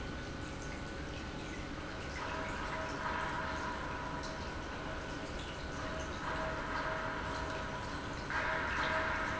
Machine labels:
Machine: pump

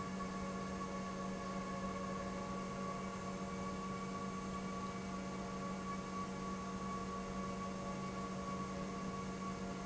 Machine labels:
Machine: pump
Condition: normal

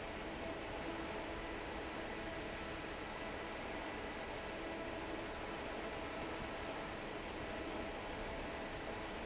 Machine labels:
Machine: fan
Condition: normal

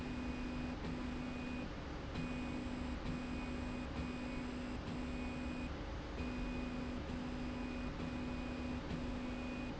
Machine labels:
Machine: slide rail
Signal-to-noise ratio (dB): 0 dB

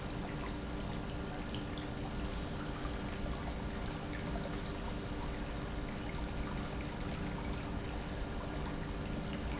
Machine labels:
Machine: pump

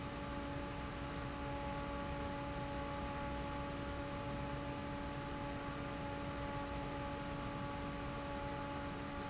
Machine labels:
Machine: fan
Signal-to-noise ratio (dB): 0 dB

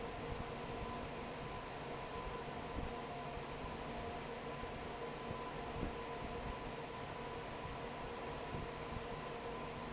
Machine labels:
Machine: fan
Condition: normal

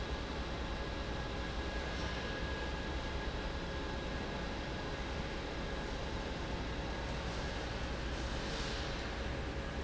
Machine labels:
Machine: fan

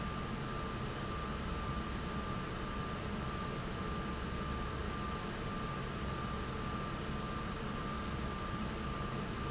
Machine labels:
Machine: fan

